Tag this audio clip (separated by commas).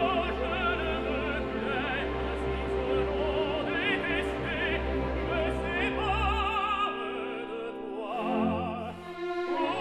Music, Opera, Singing